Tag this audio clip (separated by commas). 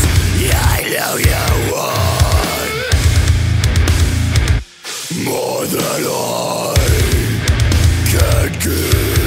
Music